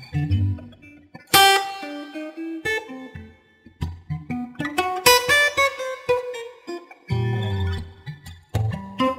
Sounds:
music, plucked string instrument, bass guitar, steel guitar

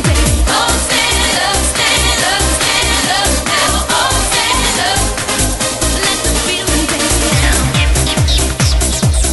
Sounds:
music, trance music

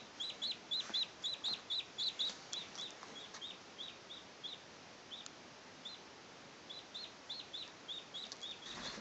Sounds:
bird

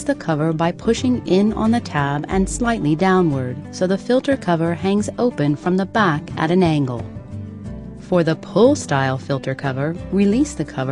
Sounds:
music, speech

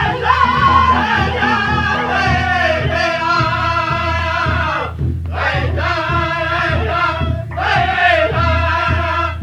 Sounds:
musical instrument, acoustic guitar, plucked string instrument, music, guitar

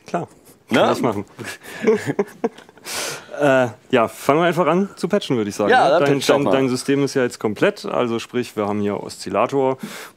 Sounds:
speech

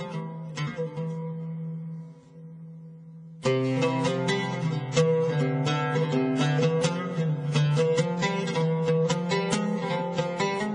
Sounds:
middle eastern music, music

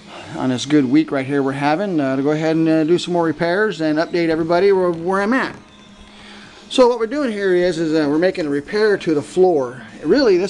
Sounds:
speech

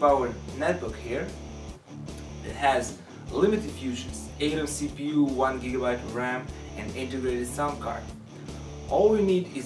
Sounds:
music, speech

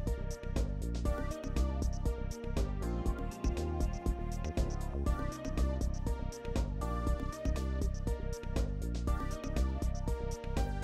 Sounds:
music

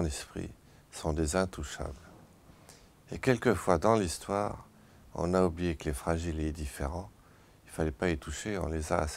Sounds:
speech

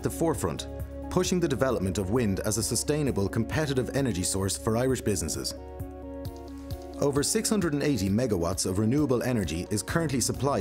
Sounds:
music, speech

